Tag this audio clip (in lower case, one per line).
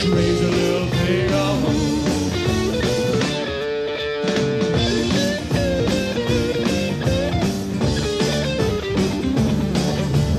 singing
psychedelic rock
music